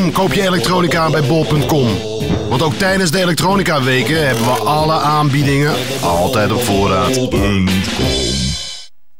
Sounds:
speech, music

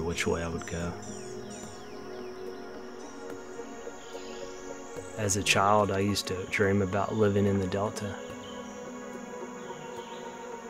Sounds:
speech, music

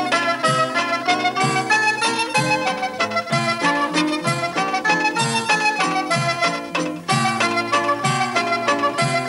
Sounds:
music

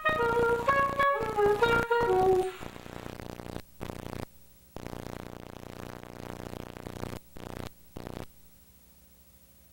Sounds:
music, clarinet, wind instrument

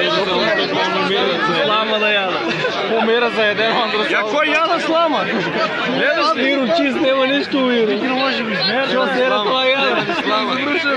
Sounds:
speech, chatter

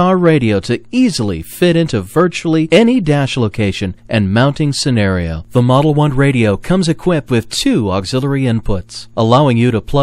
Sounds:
speech

